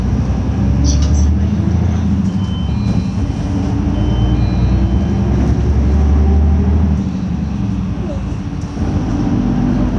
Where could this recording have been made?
on a bus